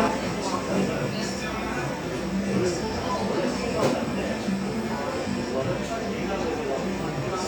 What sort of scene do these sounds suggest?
cafe